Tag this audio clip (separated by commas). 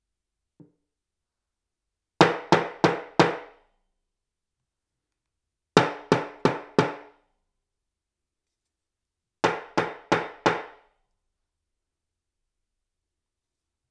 Hammer, Tools